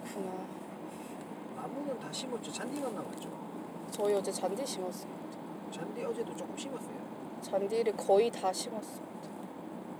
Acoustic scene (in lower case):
car